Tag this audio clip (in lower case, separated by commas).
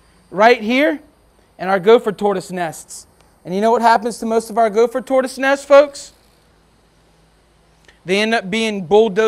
speech